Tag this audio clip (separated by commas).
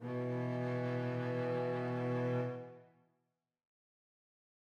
Musical instrument, Bowed string instrument, Music